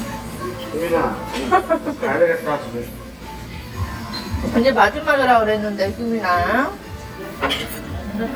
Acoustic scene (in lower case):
restaurant